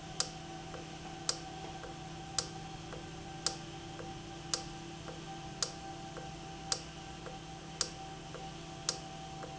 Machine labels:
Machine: valve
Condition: normal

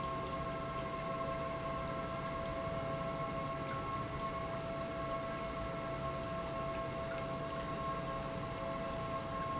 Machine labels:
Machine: pump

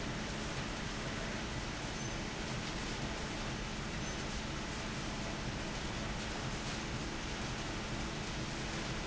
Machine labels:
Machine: fan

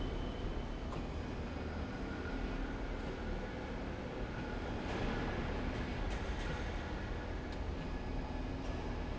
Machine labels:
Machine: slide rail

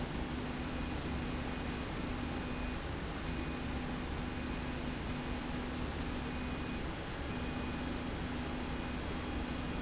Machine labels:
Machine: slide rail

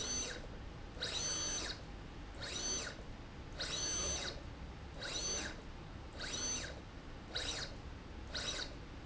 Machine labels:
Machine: slide rail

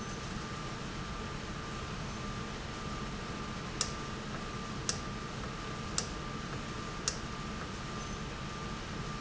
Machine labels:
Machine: valve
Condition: normal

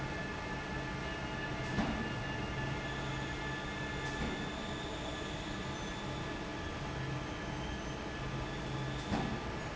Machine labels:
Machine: fan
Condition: normal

